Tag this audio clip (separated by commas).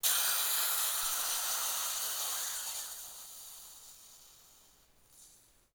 Hiss